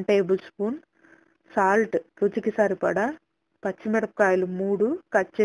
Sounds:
Speech

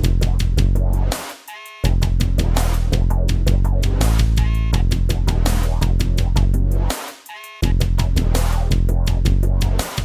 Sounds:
Music, Theme music

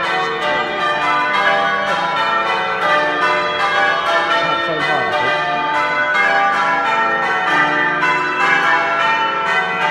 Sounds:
church bell ringing

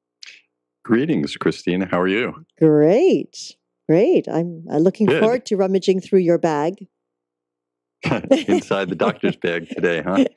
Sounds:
Speech

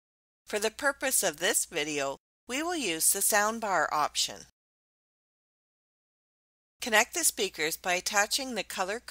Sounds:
Speech

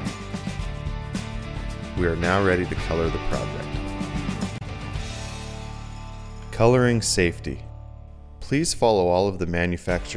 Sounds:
Music, Speech

